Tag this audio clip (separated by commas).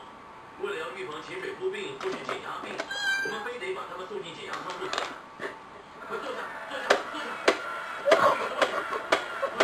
Domestic animals, Animal, Cat, Speech